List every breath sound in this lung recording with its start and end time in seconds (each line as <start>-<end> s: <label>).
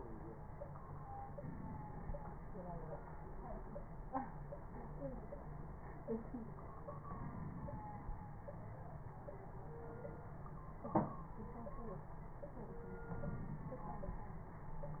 1.36-2.56 s: inhalation
7.04-8.24 s: inhalation
13.05-14.25 s: inhalation